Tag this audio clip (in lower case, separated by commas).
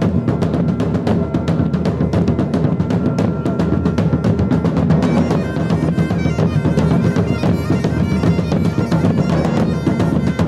music